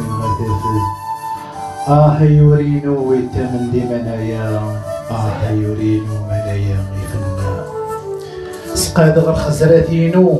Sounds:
Music, Speech

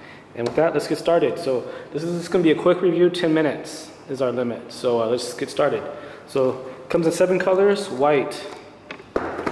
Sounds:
Speech

